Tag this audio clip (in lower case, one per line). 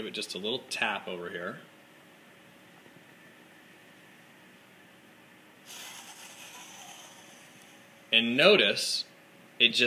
speech